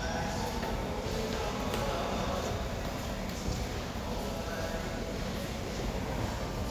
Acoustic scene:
crowded indoor space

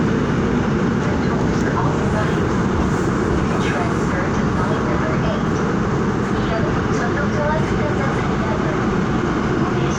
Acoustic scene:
subway train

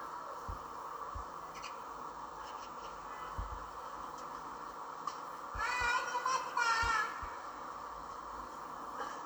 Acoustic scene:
park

